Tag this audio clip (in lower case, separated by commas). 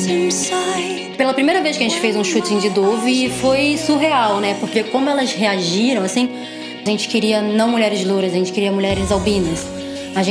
speech, music